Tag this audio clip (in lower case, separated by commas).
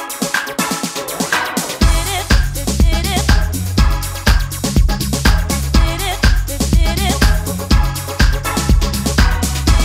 music, house music